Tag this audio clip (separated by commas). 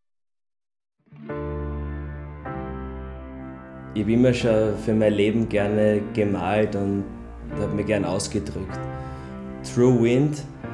Speech, Music